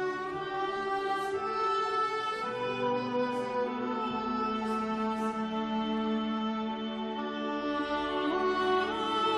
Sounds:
fiddle, Music, Musical instrument

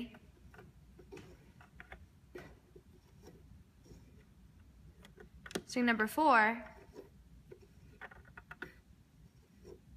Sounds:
Speech

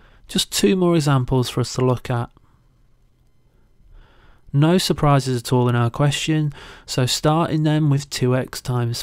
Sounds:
Speech

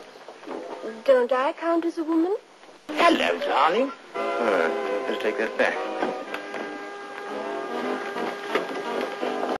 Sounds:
Speech, Music

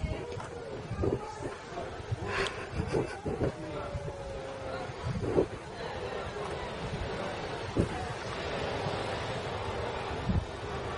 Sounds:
Speech

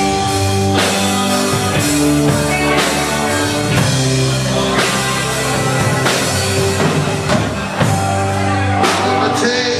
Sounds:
Music, Speech

